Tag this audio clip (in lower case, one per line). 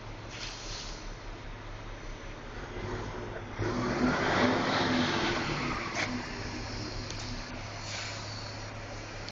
vehicle